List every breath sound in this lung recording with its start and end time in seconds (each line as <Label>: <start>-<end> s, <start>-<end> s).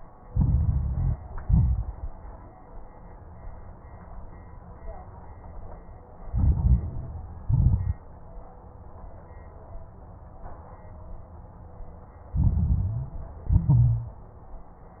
Inhalation: 0.26-1.16 s, 6.29-7.43 s, 12.37-13.43 s
Exhalation: 1.39-2.12 s, 7.49-8.02 s, 13.49-14.25 s
Crackles: 0.26-1.16 s, 1.39-2.12 s, 6.29-7.43 s, 7.49-8.02 s, 12.37-13.43 s, 13.49-14.25 s